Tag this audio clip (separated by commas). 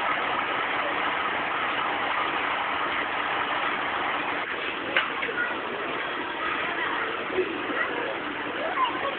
Vehicle, Speech